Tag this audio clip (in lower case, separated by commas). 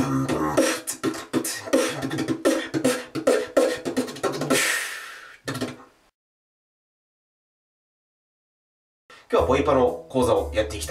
beat boxing